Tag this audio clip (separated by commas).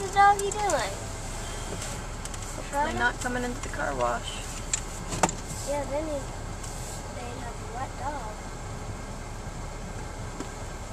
Speech